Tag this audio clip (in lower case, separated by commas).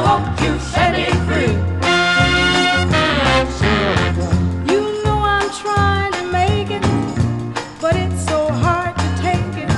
music